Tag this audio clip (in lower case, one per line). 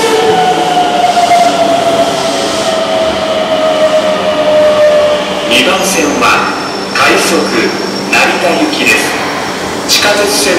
underground